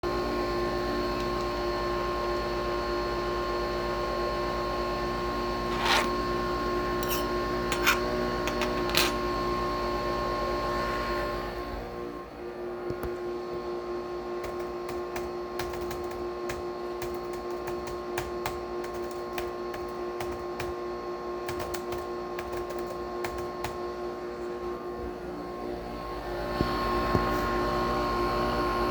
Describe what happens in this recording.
The coffee machine is working in the background. I picked up my spoon and put it next to my cup, I went over to my computer and started typing on the keyboard, whilst the coffee was working